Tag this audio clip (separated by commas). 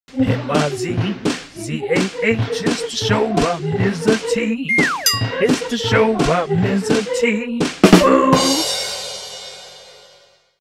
Hi-hat